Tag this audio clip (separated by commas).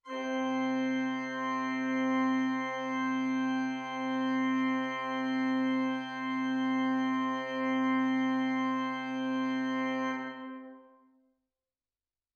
Organ, Music, Musical instrument, Keyboard (musical)